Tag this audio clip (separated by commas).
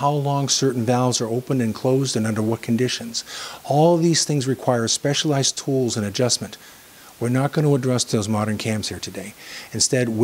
Speech